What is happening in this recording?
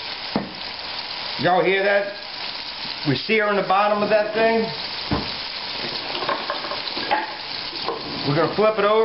Sizzling and crackling are present, thumping and clinking occur, and an adult male is speaking